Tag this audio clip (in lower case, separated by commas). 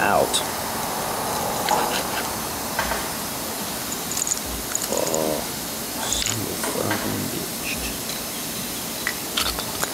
speech